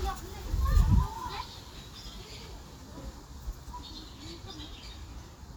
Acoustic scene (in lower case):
park